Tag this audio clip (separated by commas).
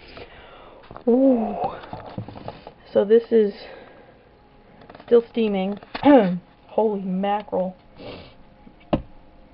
inside a small room, Speech